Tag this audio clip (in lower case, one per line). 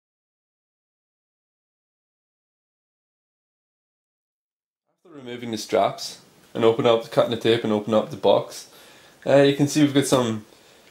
speech